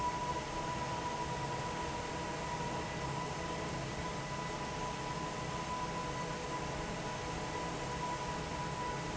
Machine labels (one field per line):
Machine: fan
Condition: normal